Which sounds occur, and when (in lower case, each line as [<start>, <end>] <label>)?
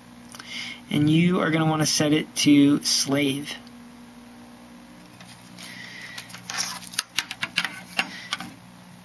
[0.00, 9.04] mechanisms
[0.29, 0.42] generic impact sounds
[0.41, 0.85] breathing
[0.90, 3.59] man speaking
[5.07, 5.43] generic impact sounds
[5.64, 6.37] breathing
[6.16, 7.05] generic impact sounds
[7.15, 7.79] generic impact sounds
[7.93, 8.11] generic impact sounds
[8.06, 8.32] breathing
[8.25, 8.54] generic impact sounds